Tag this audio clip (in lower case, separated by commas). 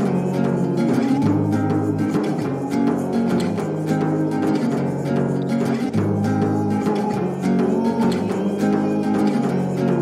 singing, music